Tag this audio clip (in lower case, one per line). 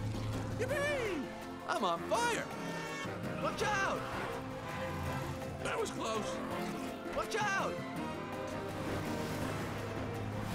music
car
vehicle
speech